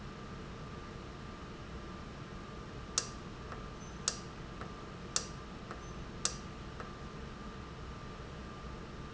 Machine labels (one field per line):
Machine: valve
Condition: normal